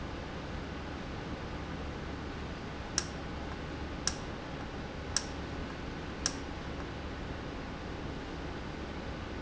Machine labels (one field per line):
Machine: valve